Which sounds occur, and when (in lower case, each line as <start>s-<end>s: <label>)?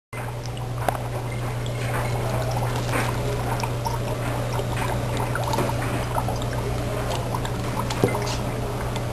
0.1s-9.1s: boiling
0.1s-9.1s: mechanisms
0.8s-1.0s: tick
1.7s-2.1s: generic impact sounds
2.6s-3.7s: generic impact sounds
4.1s-6.2s: generic impact sounds
7.9s-8.1s: chink